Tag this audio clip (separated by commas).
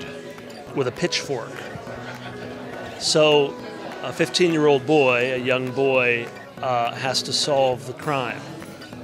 Music, Speech